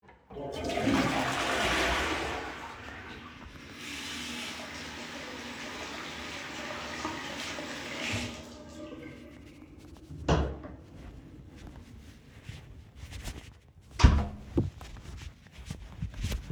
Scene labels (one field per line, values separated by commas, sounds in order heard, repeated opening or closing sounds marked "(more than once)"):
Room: bathroom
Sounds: toilet flushing, running water, door (more than once)